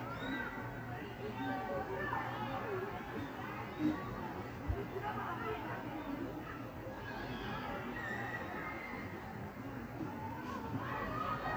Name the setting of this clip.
park